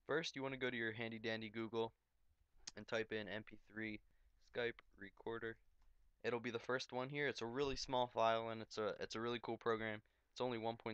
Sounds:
Speech

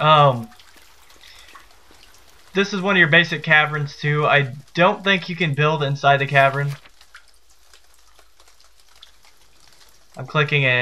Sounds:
Speech

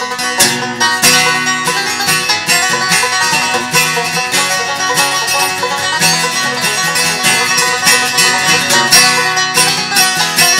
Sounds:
Country, Banjo, Bluegrass, Music, Guitar, Acoustic guitar, playing banjo, Musical instrument, Plucked string instrument

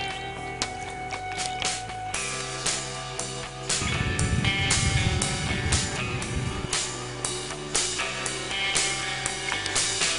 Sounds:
Music

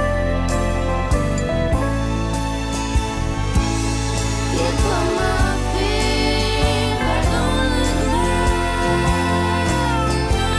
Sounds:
Music

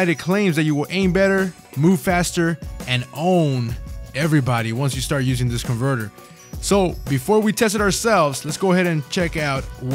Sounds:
Music, Speech

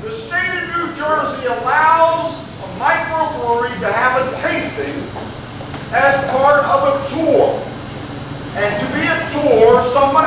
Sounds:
Male speech, Narration, Speech

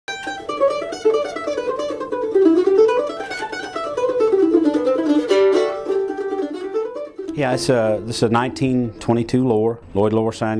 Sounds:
Musical instrument, Speech, Music, Guitar, Plucked string instrument

